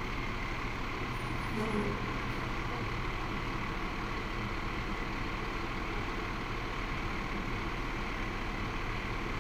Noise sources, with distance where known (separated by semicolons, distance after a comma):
large-sounding engine, near